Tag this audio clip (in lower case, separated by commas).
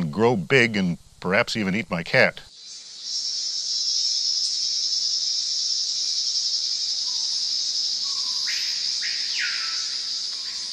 speech, animal